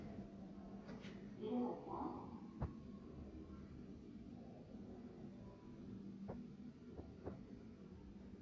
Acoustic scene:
elevator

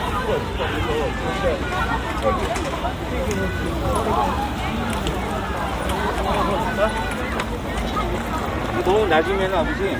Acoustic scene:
park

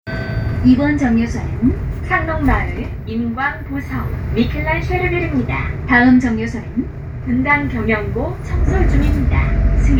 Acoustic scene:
bus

